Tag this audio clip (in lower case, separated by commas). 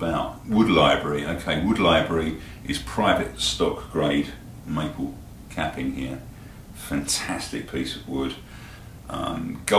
speech